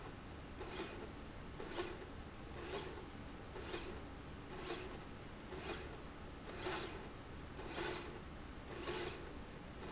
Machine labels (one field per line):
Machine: slide rail